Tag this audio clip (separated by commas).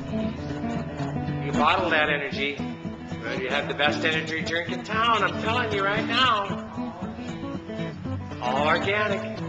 Speech, Music